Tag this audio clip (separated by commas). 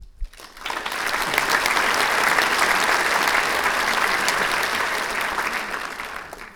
Crowd, Human group actions, Applause